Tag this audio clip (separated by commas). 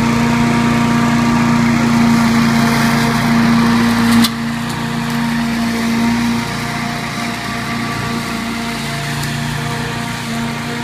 Lawn mower, lawn mowing